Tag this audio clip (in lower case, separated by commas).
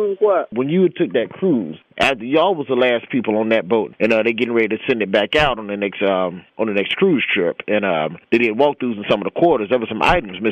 speech